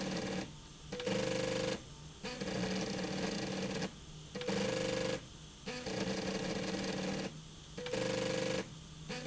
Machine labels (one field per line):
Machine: slide rail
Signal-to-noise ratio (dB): 6 dB